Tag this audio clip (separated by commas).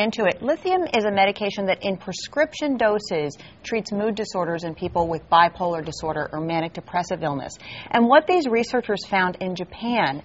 Speech